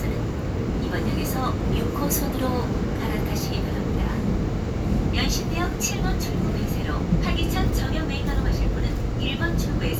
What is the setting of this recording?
subway train